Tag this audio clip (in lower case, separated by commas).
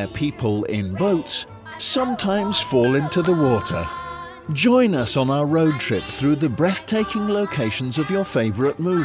music, speech